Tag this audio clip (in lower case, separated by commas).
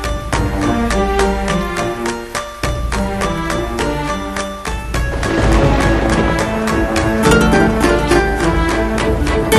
music